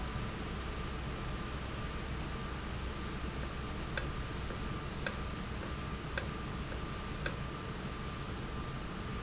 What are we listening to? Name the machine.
valve